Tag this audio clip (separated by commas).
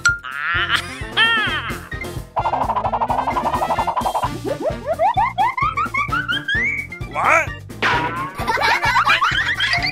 ice cream truck